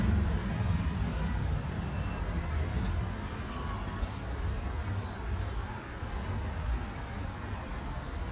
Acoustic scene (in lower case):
residential area